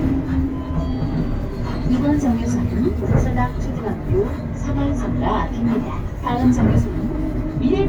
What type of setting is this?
bus